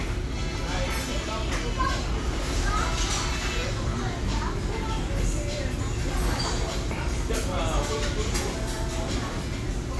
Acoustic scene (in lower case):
restaurant